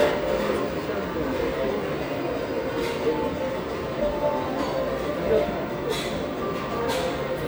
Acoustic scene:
restaurant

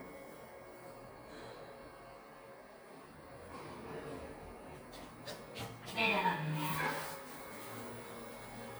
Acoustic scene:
elevator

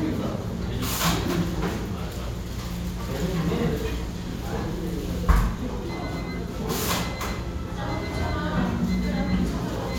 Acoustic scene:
restaurant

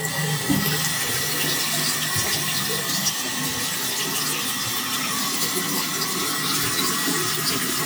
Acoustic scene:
restroom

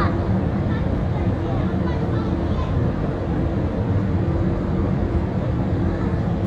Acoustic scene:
park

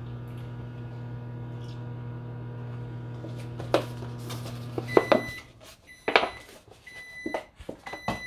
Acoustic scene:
kitchen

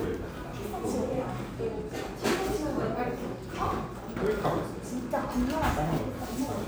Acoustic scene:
cafe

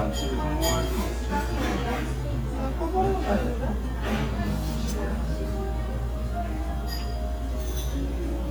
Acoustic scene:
restaurant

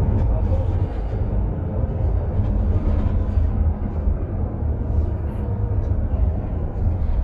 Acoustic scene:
bus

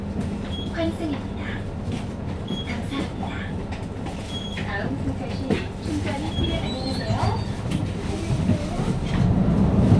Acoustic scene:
bus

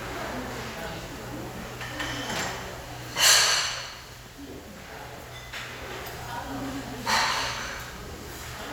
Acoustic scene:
restaurant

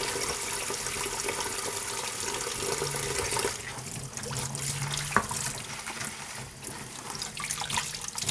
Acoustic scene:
kitchen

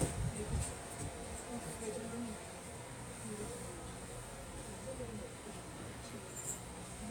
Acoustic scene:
subway train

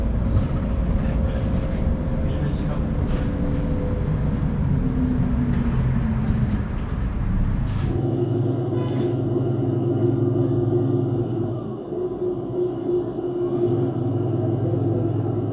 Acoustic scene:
bus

